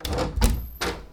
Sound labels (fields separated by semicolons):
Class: door; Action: opening; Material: wooden